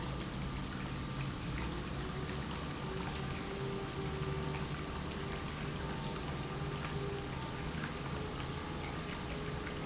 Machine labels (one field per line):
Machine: pump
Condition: normal